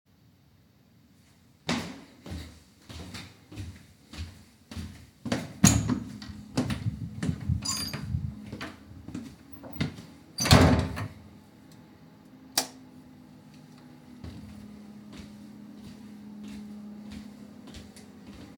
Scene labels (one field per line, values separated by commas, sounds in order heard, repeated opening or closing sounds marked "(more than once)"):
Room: office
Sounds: footsteps, door (more than once), light switch